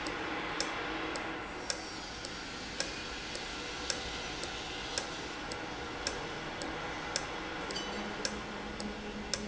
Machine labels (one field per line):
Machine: valve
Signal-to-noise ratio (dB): -6 dB